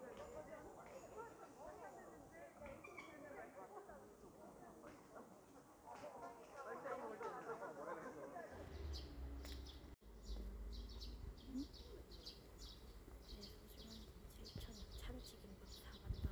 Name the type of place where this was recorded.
park